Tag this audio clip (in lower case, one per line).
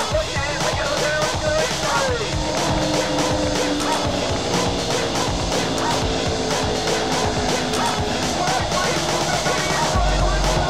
music
sailboat